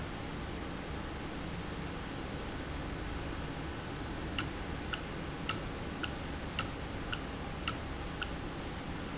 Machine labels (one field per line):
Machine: valve